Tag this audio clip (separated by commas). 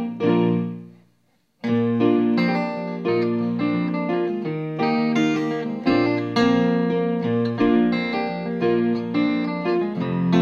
Electric piano, Music